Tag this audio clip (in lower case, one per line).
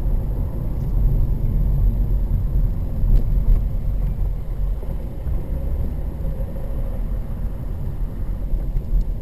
vehicle